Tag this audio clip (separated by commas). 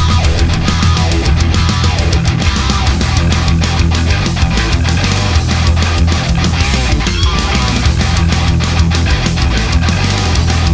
Music, Heavy metal